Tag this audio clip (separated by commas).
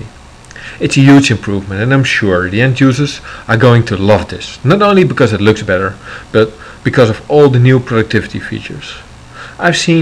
Speech